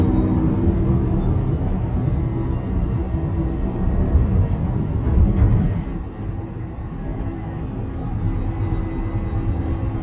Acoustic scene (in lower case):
bus